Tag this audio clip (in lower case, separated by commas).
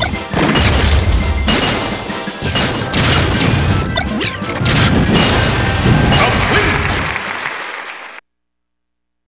thwack, crash